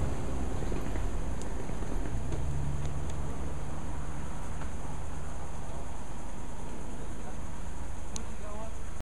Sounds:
outside, rural or natural, speech, animal

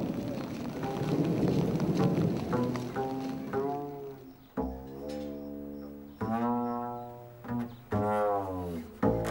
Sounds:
music, didgeridoo

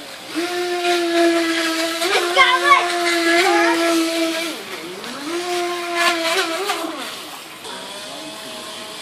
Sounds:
speedboat, speech

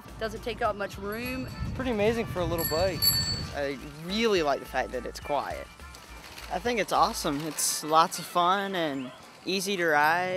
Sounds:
vehicle, music, speech, bicycle

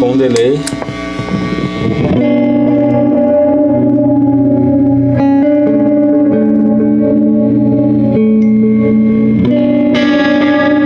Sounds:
guitar, plucked string instrument, music, speech, inside a small room, musical instrument

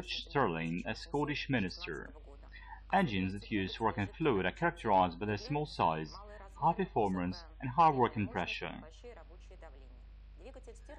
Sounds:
speech

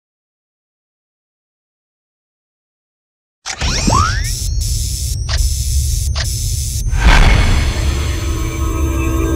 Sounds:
music

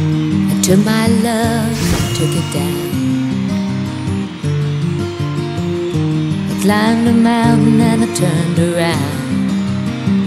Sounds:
music, guitar

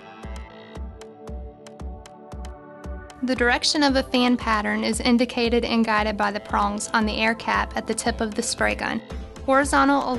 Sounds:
speech, music

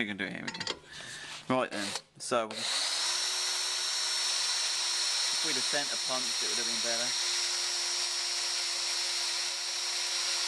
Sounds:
tools, speech, drill

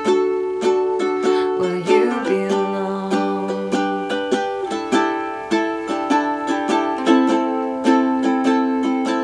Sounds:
ukulele, music, inside a small room

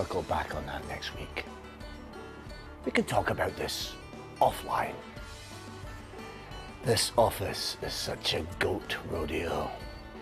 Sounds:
speech, music

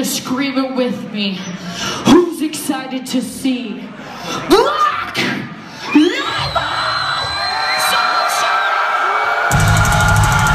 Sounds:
music, speech

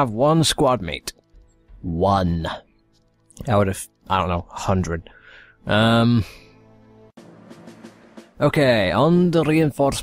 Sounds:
speech, speech synthesizer, music

